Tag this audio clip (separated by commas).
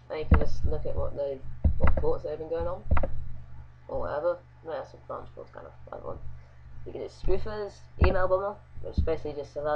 Speech